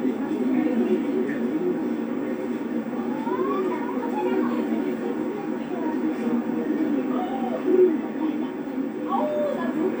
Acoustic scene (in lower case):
park